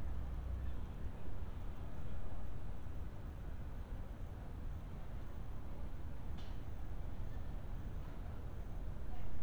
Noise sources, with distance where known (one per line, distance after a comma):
background noise